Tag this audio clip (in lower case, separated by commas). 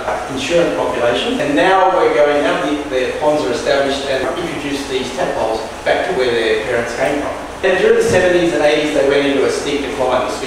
speech